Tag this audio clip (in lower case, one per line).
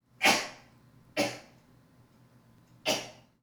cough
respiratory sounds